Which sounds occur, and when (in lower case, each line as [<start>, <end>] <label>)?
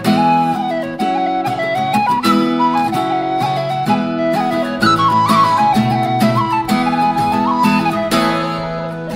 [0.00, 9.15] music